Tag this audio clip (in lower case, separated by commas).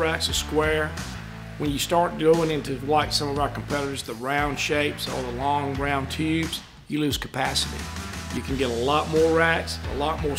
speech, music